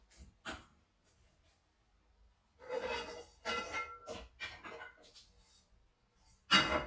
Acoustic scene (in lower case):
kitchen